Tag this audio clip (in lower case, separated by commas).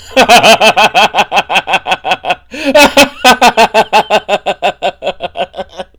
human voice, laughter